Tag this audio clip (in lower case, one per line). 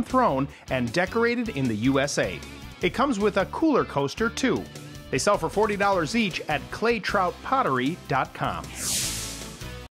music
speech